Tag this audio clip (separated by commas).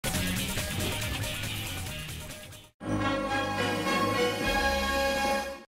Music